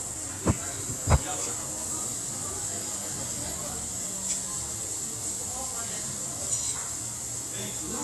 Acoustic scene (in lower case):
restaurant